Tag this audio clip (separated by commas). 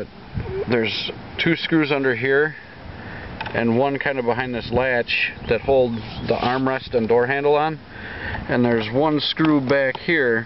Speech